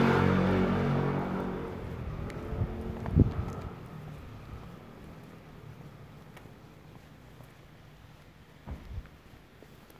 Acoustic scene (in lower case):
residential area